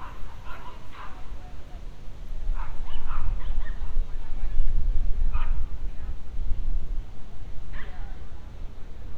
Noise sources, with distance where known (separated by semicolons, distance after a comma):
person or small group talking; dog barking or whining, far